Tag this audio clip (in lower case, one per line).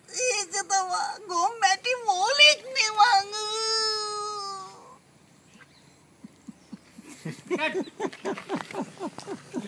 speech
outside, rural or natural